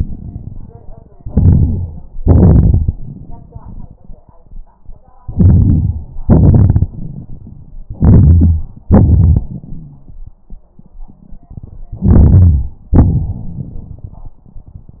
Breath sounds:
1.19-2.05 s: inhalation
2.18-3.09 s: exhalation
5.22-6.17 s: inhalation
6.23-7.85 s: exhalation
7.97-8.63 s: inhalation
7.97-8.63 s: wheeze
8.88-10.19 s: exhalation
12.02-12.79 s: inhalation
12.93-14.44 s: exhalation
12.93-14.44 s: crackles

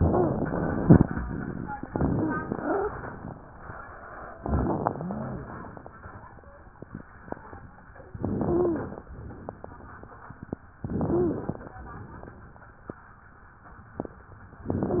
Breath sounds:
0.00-0.96 s: inhalation
0.00-0.96 s: wheeze
1.86-2.88 s: wheeze
1.86-2.96 s: inhalation
4.42-4.94 s: crackles
4.42-5.50 s: inhalation
4.42-5.52 s: wheeze
8.16-9.08 s: inhalation
8.46-8.84 s: wheeze
9.18-10.30 s: exhalation
10.80-11.72 s: inhalation
11.10-11.48 s: wheeze
11.82-12.94 s: exhalation
14.66-15.00 s: inhalation
14.84-15.00 s: wheeze

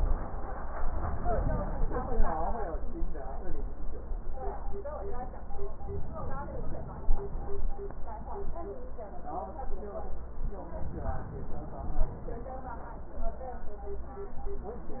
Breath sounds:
5.87-7.57 s: inhalation
10.79-12.49 s: inhalation

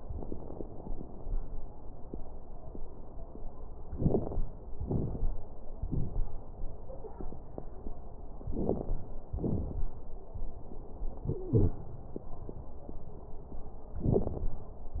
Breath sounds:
3.93-4.46 s: inhalation
3.93-4.46 s: crackles
4.77-5.39 s: exhalation
4.77-5.39 s: crackles
8.45-9.28 s: crackles
8.45-9.29 s: inhalation
9.29-10.03 s: exhalation
9.29-10.03 s: crackles
11.29-11.82 s: wheeze

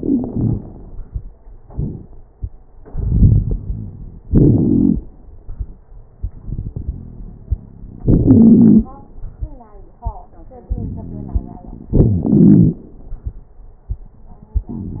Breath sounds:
0.00-1.04 s: inhalation
0.00-1.04 s: crackles
1.58-2.13 s: exhalation
1.58-2.13 s: crackles
2.79-4.19 s: inhalation
2.79-4.19 s: crackles
4.26-5.05 s: exhalation
4.26-5.05 s: crackles
6.41-7.30 s: inhalation
6.86-7.29 s: wheeze
8.03-8.86 s: exhalation
8.03-8.86 s: wheeze
10.70-11.91 s: inhalation
10.70-11.91 s: crackles
11.91-12.41 s: wheeze
11.91-12.82 s: exhalation
14.57-15.00 s: inhalation
14.57-15.00 s: crackles

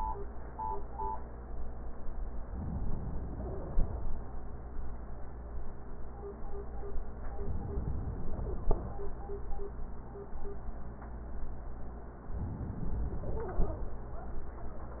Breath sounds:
2.51-4.12 s: inhalation
7.38-8.99 s: inhalation
12.26-13.87 s: inhalation

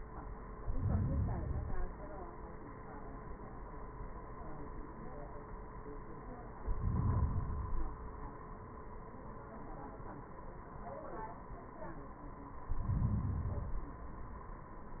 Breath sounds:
0.53-2.03 s: inhalation
6.57-8.07 s: inhalation
12.60-14.10 s: inhalation

